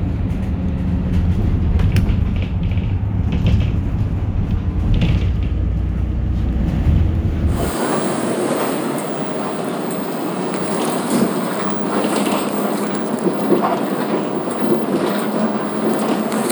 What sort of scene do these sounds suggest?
bus